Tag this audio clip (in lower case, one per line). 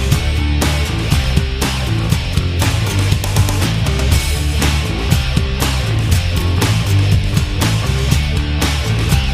music